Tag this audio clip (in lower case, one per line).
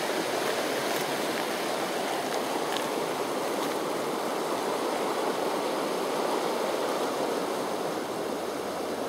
outside, rural or natural
snake